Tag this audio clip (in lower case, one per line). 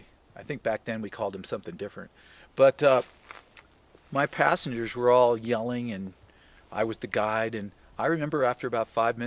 speech